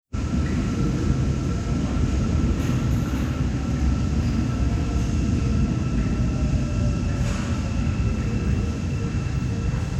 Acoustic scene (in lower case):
subway station